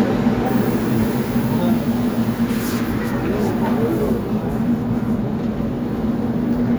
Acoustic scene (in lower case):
subway station